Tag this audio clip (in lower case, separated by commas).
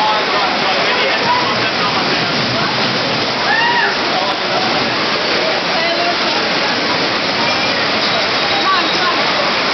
rain, rain on surface